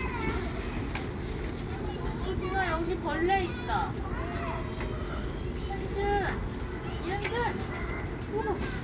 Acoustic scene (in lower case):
residential area